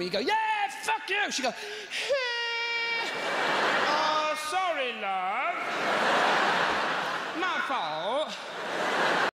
A man speaks, a crowd laughs